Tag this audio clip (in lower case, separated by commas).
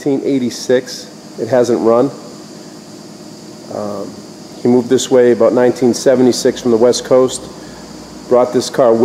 speech